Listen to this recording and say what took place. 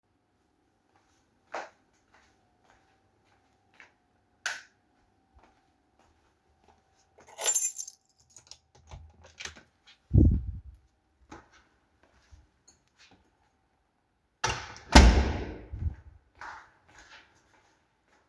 I walked through the hallway toward the door. I turned off the light and picked up my key. I opened the door, went outside, and closed the door behind me.